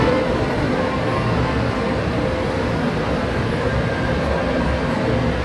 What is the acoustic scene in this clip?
subway station